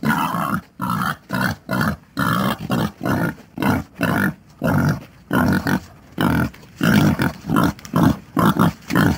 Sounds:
pig oinking

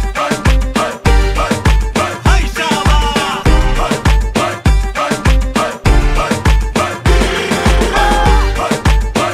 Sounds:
music

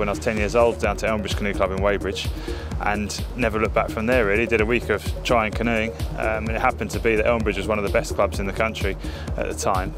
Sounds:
speech, music

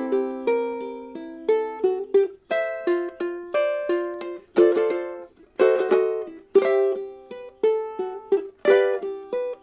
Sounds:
new-age music, music

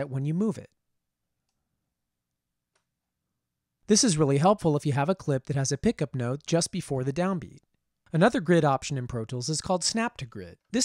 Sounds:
speech

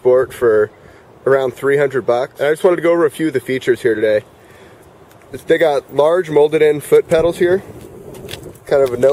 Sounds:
speech

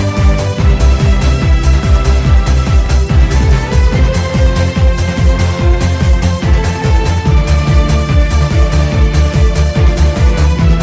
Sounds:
music

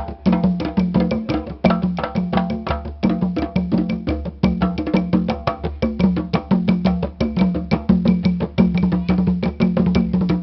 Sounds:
music

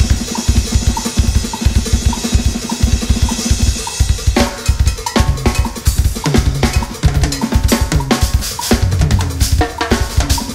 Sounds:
cymbal, hi-hat

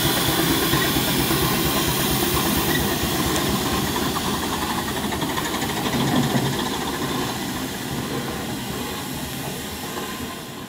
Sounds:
hiss, steam

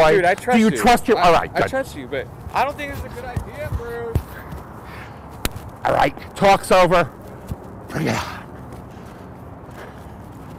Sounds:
speech, vehicle

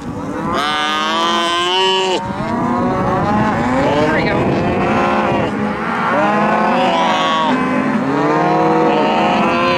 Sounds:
speech, animal

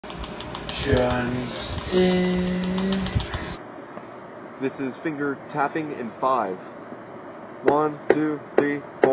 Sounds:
percussion, wood block

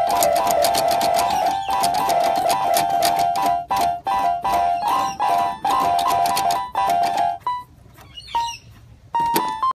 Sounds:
music

